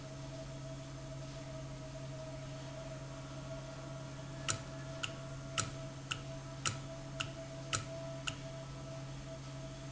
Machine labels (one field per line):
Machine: valve